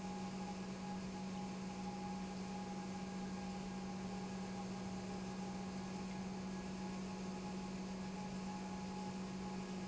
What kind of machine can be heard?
pump